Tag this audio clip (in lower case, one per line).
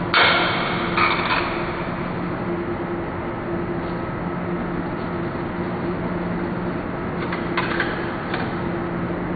printer